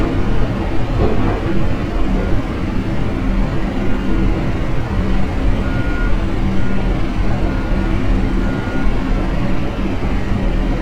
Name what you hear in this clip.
rock drill, reverse beeper